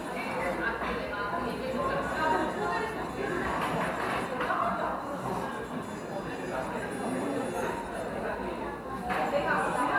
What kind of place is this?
cafe